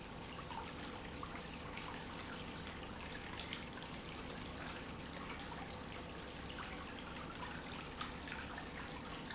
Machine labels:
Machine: pump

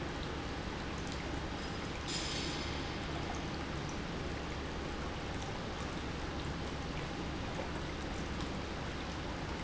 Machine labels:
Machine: pump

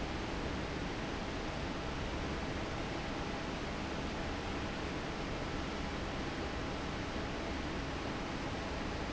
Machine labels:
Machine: fan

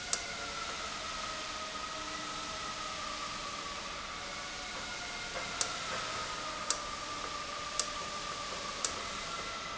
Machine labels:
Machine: valve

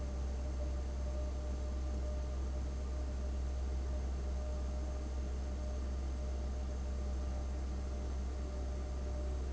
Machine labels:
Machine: fan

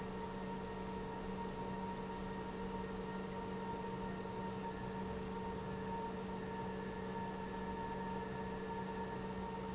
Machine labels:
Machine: pump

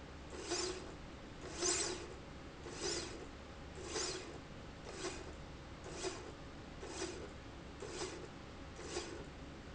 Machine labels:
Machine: slide rail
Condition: normal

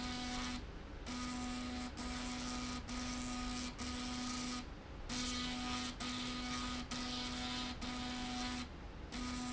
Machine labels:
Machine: slide rail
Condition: abnormal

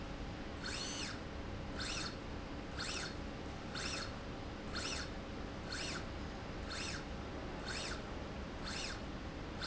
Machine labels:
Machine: slide rail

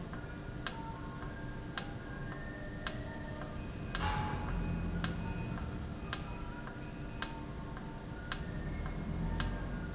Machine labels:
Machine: valve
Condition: normal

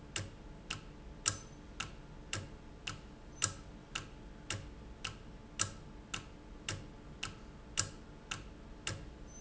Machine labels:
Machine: valve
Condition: normal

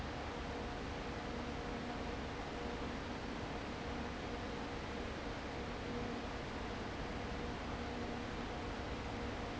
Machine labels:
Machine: fan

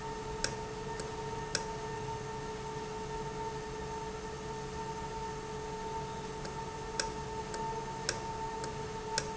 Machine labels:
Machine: valve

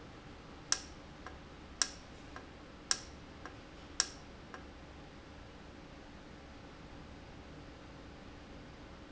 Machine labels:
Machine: valve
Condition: normal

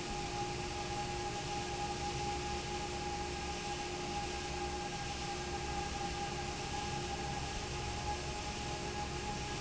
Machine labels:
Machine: fan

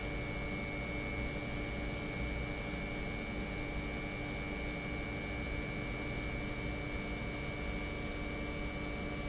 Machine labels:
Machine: pump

